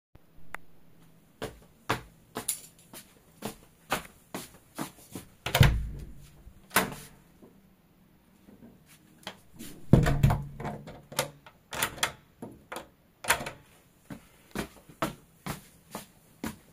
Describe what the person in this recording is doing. I walked down the hallway with keys in my hand. The keys produced a ringing sound while I approached the door. I unlocked the door, opened it, closed it again, and locked it before walking away.